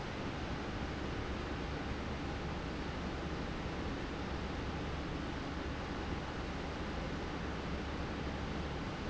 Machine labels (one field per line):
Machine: fan